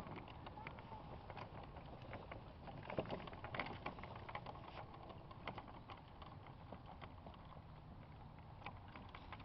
A horse trots and he makes a clip clopping noise